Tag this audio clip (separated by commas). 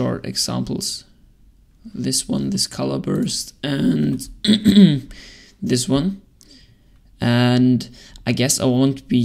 Speech